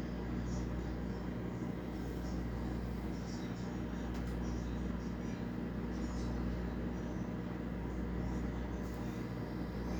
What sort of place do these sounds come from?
kitchen